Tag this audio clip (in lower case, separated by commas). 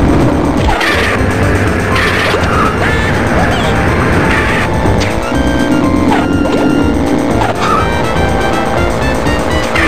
music